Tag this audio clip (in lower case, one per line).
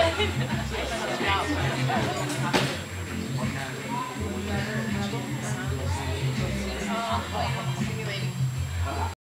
speech
music